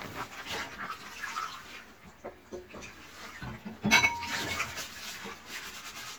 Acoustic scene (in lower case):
kitchen